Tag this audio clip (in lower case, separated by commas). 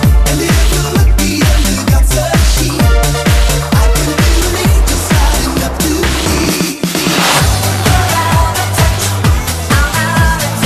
music, disco, dance music